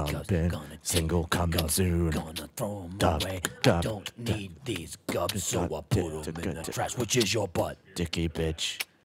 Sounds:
Male singing

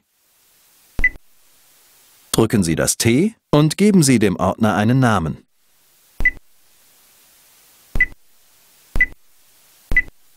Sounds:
Speech

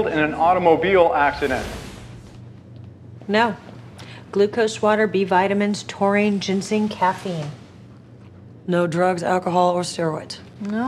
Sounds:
Speech

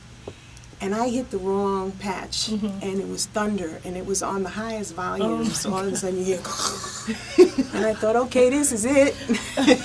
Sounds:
woman speaking, Speech

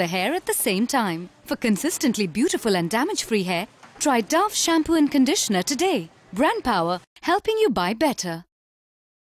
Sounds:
Speech

